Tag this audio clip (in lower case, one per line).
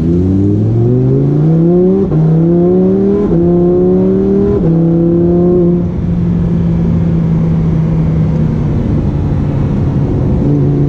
car passing by